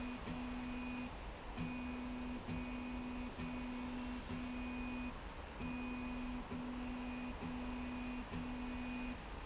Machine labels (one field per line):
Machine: slide rail